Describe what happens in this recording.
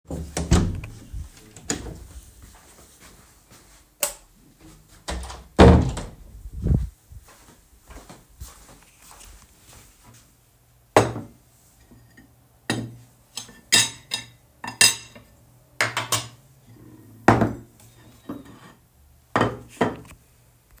I opened the door, turned on the light, closed the door, came to the table and used cutlery with dishes